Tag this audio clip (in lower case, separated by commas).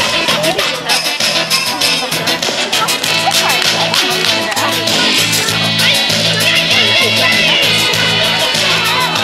music, speech